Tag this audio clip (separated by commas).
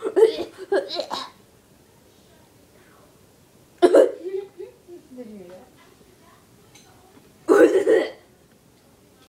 Speech